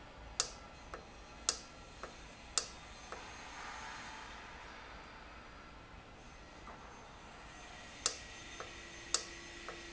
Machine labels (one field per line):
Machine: valve